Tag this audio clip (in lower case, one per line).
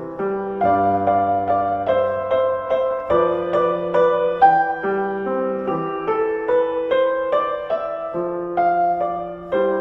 music